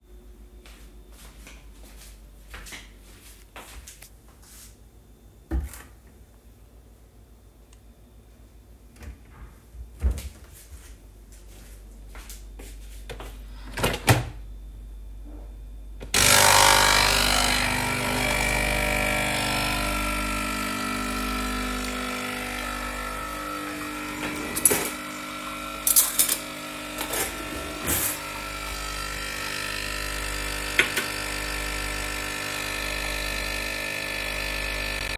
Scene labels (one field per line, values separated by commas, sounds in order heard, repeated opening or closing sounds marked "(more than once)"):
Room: kitchen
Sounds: footsteps, wardrobe or drawer (more than once), coffee machine, cutlery and dishes